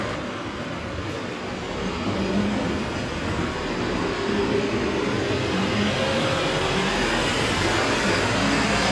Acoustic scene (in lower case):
street